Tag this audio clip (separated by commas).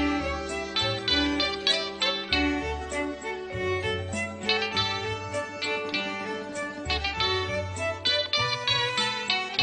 Music, fiddle, Musical instrument